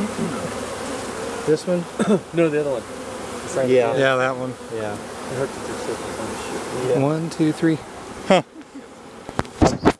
People are talking together as insects buzz